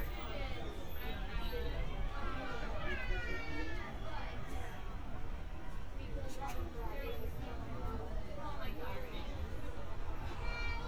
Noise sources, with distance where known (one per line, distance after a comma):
person or small group talking